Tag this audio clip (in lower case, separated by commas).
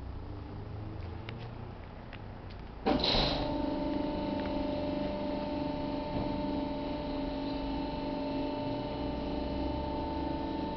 hum